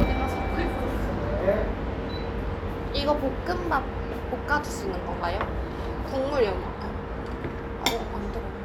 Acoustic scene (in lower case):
restaurant